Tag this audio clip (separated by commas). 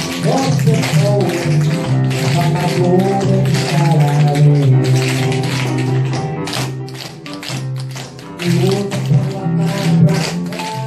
tap dancing